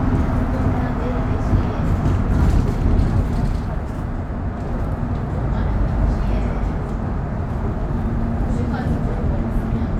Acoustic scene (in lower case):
bus